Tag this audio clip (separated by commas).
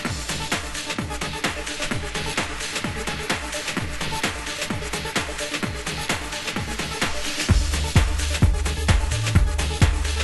Music